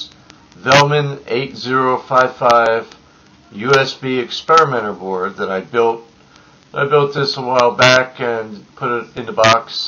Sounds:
Narration, Speech, man speaking

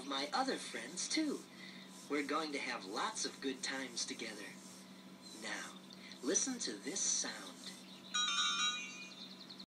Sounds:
Speech

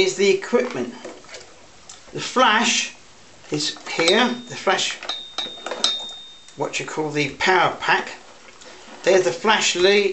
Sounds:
Speech

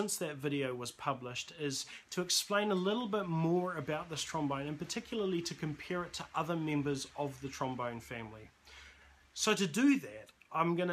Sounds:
Speech

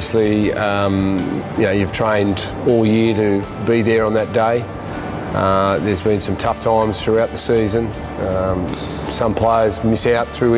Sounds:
Speech, Music

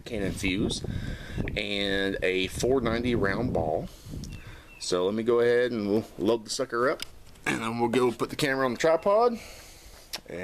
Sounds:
Speech

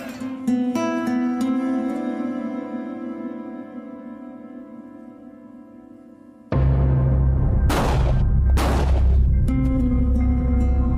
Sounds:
Scary music, Music

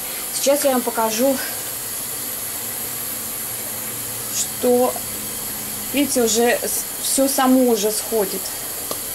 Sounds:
eating with cutlery

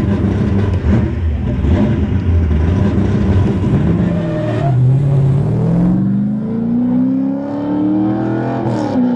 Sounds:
Vehicle, auto racing, Medium engine (mid frequency), Car, vroom

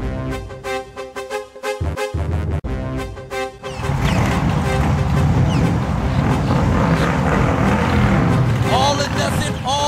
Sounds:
Music, Speech

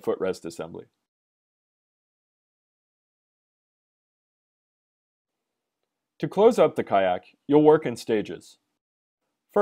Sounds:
Speech

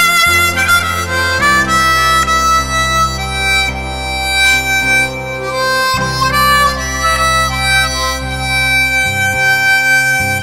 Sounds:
Wind instrument, Harmonica

